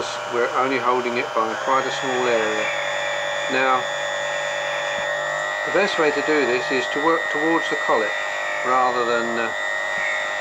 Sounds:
Speech

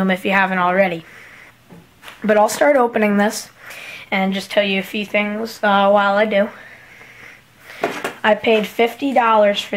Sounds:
Speech

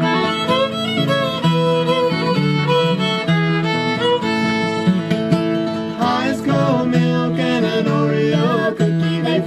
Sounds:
Music

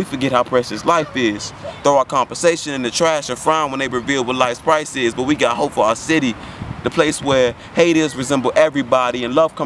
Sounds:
Speech

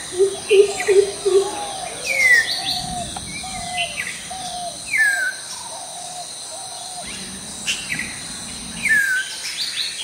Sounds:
bird call, tweeting, tweet, Bird

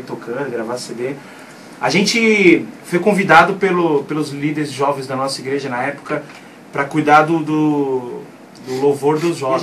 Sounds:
Speech

